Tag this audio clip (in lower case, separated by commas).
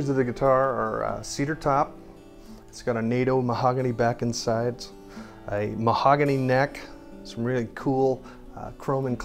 guitar, music, speech